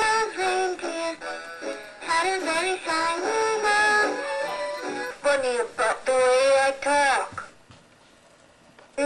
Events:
[0.00, 1.01] synthetic singing
[0.00, 5.03] music
[0.00, 9.05] mechanisms
[1.90, 3.98] synthetic singing
[5.11, 7.38] speech synthesizer
[6.69, 6.89] generic impact sounds
[7.18, 7.68] generic impact sounds
[8.60, 8.77] generic impact sounds

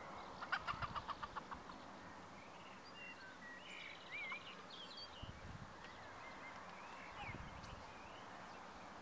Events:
[0.00, 5.44] tweet
[0.00, 9.01] wind
[0.37, 1.53] cluck
[0.67, 1.05] wind noise (microphone)
[4.27, 4.35] cluck
[5.09, 5.72] wind noise (microphone)
[5.78, 8.58] tweet
[7.11, 7.35] bird
[7.16, 7.45] wind noise (microphone)

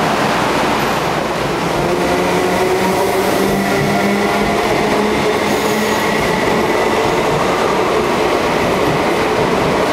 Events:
[0.00, 9.92] subway
[1.90, 9.92] clickety-clack

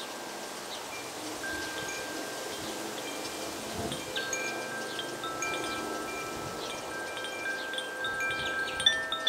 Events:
[0.00, 9.25] rustle
[0.65, 0.77] bird vocalization
[0.70, 9.25] wind chime
[4.84, 5.24] bird vocalization
[6.50, 6.89] bird vocalization
[7.54, 7.88] bird vocalization
[8.28, 9.05] bird vocalization

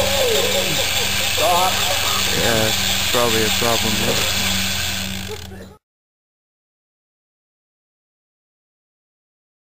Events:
[0.00, 5.74] mechanisms
[1.39, 1.74] man speaking
[2.28, 2.67] man speaking
[3.10, 4.27] man speaking
[5.24, 5.78] bark

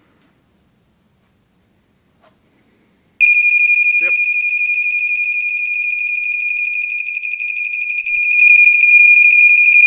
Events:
[0.00, 0.32] generic impact sounds
[0.00, 9.85] background noise
[1.14, 1.27] generic impact sounds
[2.12, 2.30] generic impact sounds
[2.37, 3.01] surface contact
[3.14, 9.85] smoke detector
[3.93, 4.12] male speech
[8.03, 8.19] generic impact sounds
[8.39, 8.77] generic impact sounds
[9.40, 9.53] generic impact sounds

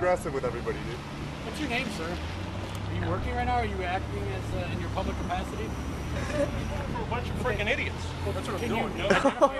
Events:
[0.00, 9.55] wind
[0.01, 9.55] roadway noise
[0.01, 0.94] male speech
[1.47, 2.13] male speech
[2.95, 5.45] male speech
[6.92, 7.92] male speech
[8.27, 9.55] male speech
[9.05, 9.55] laughter

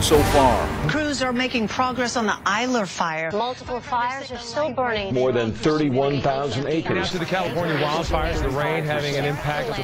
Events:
[0.01, 0.82] man speaking
[0.01, 9.83] background noise
[0.83, 9.83] woman speaking
[5.09, 9.83] man speaking

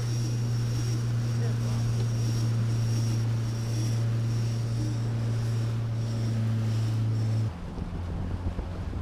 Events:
[0.00, 9.01] sailboat
[0.00, 9.01] water
[0.00, 9.01] wind

